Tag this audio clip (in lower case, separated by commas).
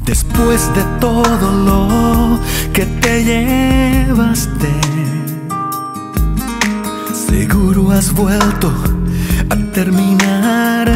music